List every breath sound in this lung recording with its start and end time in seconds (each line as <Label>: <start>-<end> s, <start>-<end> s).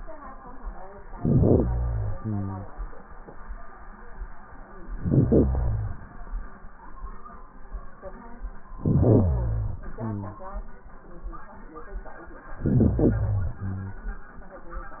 Inhalation: 1.10-2.18 s, 4.88-6.06 s, 8.70-9.88 s, 12.53-13.53 s
Exhalation: 2.19-3.25 s, 9.87-10.88 s, 13.53-14.37 s